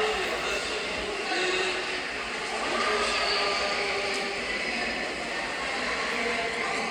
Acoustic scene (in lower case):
subway station